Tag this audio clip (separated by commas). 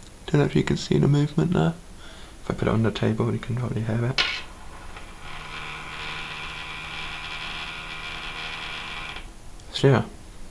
Speech, Vibration